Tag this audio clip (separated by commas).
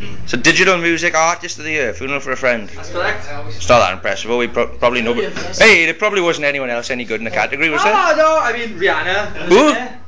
Speech